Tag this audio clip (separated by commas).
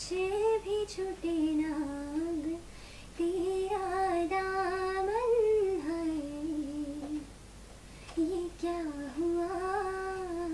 inside a small room